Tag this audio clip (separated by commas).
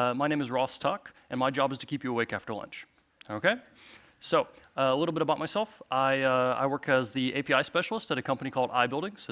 Speech